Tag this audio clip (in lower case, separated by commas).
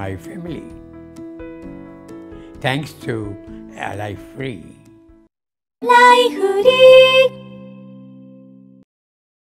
speech, music